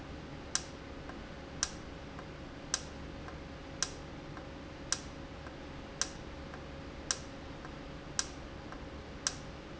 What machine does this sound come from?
valve